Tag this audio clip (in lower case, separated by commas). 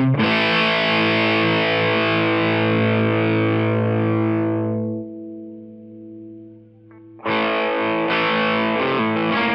music, distortion